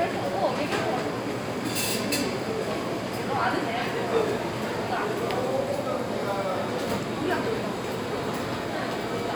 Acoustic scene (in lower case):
crowded indoor space